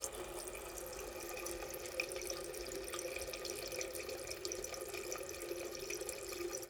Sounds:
water tap
home sounds

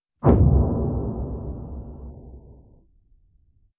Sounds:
explosion

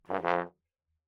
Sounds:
music
musical instrument
brass instrument

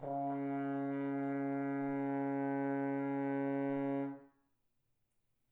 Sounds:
brass instrument
musical instrument
music

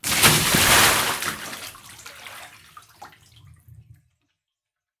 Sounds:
splash
bathtub (filling or washing)
domestic sounds
liquid

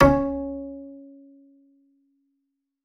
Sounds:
musical instrument
bowed string instrument
music

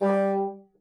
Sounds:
music
musical instrument
wind instrument

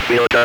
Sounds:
speech
human voice

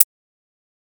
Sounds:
tick

